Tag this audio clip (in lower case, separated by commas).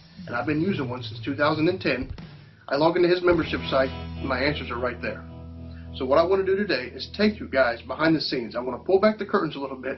speech, music